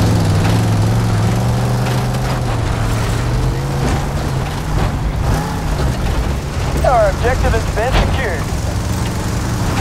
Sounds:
Speech

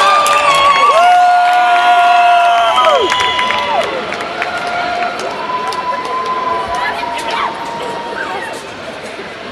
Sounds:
Cheering

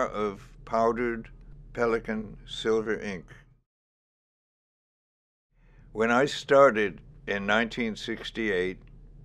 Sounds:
inside a small room, Speech

